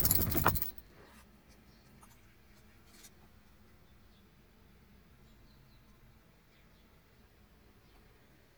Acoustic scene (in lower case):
park